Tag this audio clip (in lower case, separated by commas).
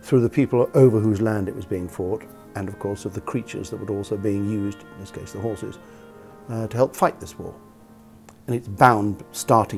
music, speech